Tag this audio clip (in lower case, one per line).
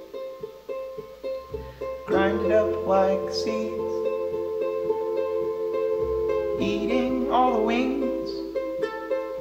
music